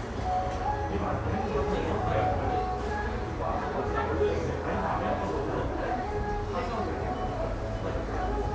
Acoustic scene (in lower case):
cafe